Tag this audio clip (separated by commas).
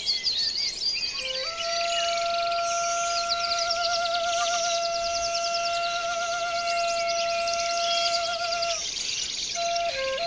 Music, Progressive rock